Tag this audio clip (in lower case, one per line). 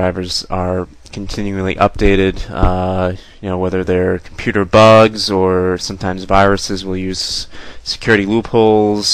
speech